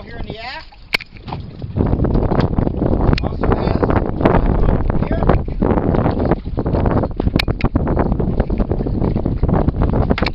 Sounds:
speech

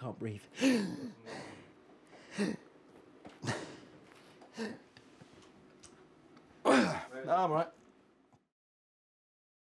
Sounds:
people hiccup

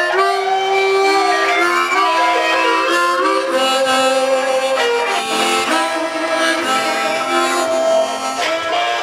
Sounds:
harmonica
woodwind instrument

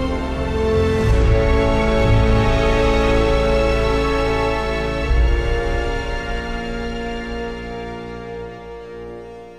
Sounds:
music

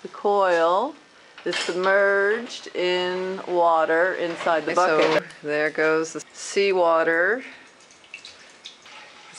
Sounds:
gurgling
speech

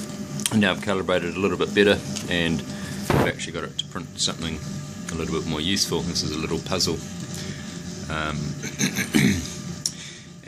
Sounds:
speech

